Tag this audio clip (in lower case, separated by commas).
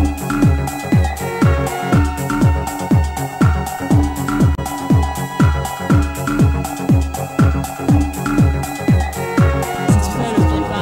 music